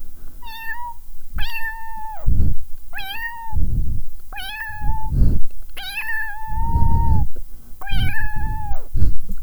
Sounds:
Meow, Animal, Cat, Domestic animals

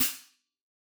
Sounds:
Hi-hat, Music, Musical instrument, Cymbal, Percussion

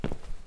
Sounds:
footsteps

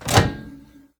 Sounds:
home sounds, Microwave oven

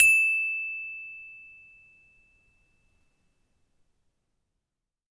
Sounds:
xylophone, Mallet percussion, Music, Musical instrument, Percussion

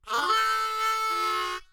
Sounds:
Harmonica, Musical instrument, Music

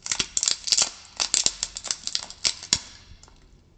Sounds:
Wood

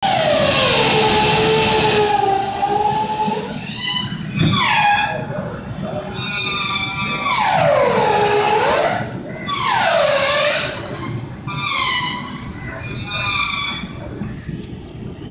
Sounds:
Power tool, Tools, Drill

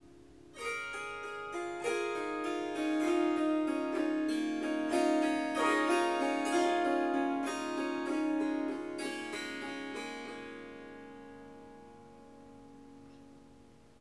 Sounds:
Musical instrument, Music, Harp

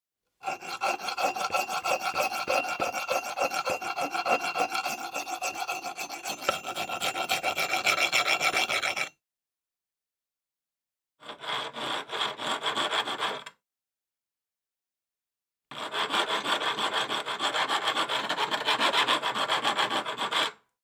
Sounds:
Tools

